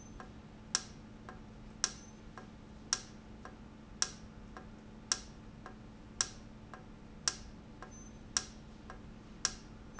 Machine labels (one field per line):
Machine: valve